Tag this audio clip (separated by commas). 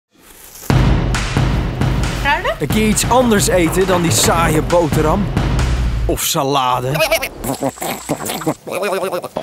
Music, Goat, Speech